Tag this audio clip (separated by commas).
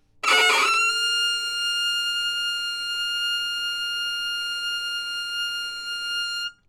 Music, Musical instrument, Bowed string instrument